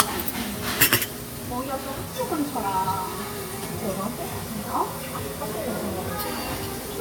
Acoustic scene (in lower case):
restaurant